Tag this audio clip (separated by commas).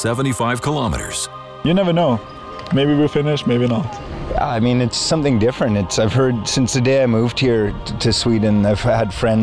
outside, urban or man-made, Speech, Music